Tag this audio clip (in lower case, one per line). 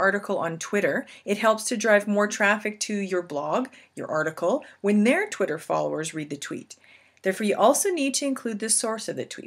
speech